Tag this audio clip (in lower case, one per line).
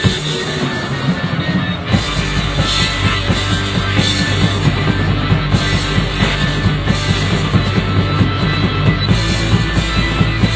rock music
musical instrument
music
progressive rock